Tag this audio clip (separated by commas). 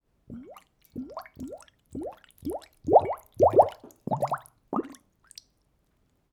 Liquid, Water